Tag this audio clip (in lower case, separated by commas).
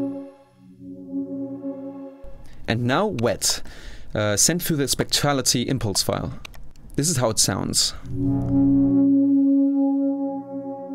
speech, music